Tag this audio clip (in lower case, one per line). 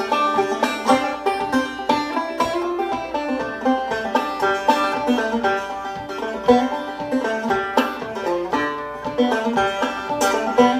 music
banjo
playing banjo